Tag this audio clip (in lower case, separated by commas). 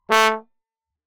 music, brass instrument, musical instrument